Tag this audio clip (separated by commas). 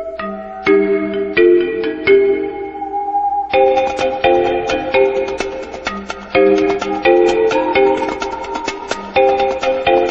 Music